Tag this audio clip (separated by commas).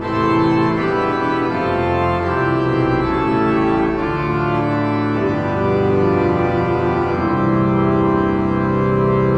playing electronic organ